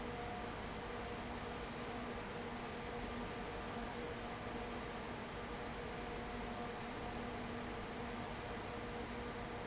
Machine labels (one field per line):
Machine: fan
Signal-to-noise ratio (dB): 6 dB